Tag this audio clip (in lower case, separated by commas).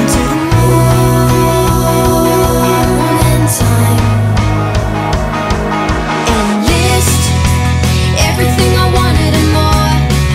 music